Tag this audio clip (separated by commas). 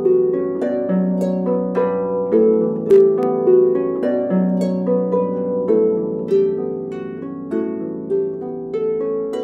playing harp